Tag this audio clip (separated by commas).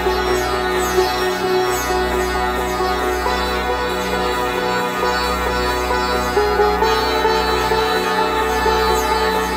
Music, Traditional music